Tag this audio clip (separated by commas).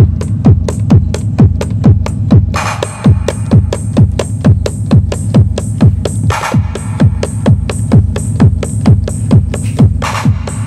Drum machine, Music, Musical instrument